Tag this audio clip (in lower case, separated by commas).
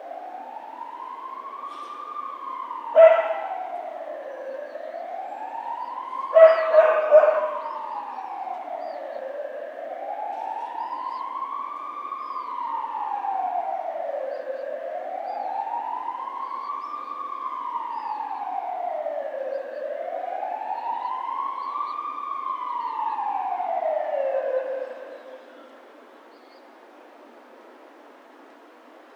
animal, siren, alarm, domestic animals, motor vehicle (road), vehicle, dog, bark